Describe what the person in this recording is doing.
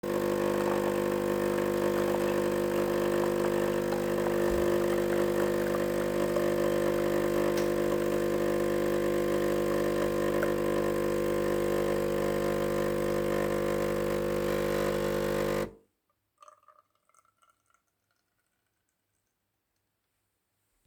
My brother was making coffee with his coffee machine.